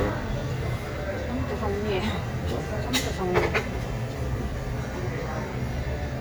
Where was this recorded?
in a crowded indoor space